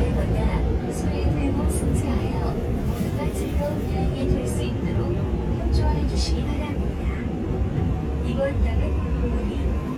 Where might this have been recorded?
on a subway train